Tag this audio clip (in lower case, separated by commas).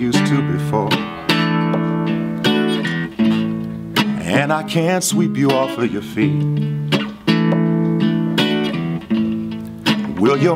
male singing, music